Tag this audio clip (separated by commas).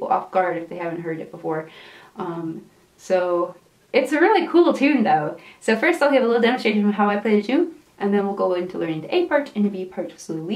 Speech